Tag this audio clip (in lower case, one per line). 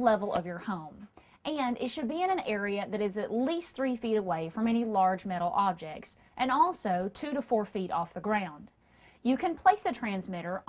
speech